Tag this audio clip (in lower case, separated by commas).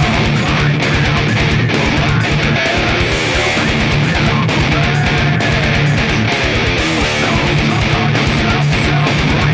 music, acoustic guitar, strum, plucked string instrument, musical instrument, guitar